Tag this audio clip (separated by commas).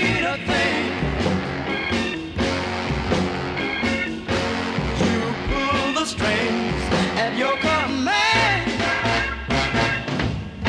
Music